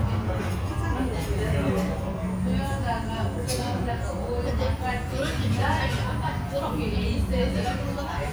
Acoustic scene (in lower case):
restaurant